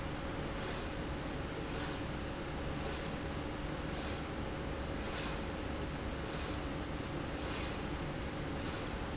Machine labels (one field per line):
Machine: slide rail